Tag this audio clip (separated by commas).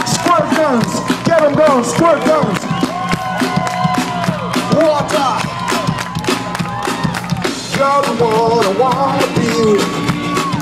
Exciting music, Music